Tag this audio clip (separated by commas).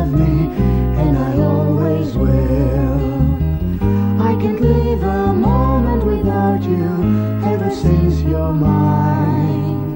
Music